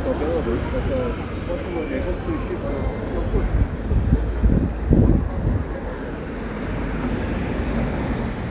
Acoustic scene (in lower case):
residential area